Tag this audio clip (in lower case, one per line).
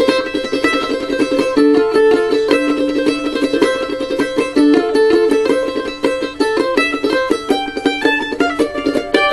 mandolin
music
guitar
plucked string instrument
musical instrument